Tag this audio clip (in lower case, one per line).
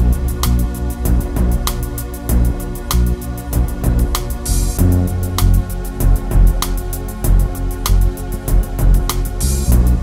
rhythm and blues
soundtrack music
music